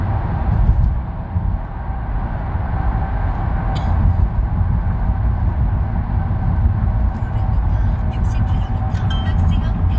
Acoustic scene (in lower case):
car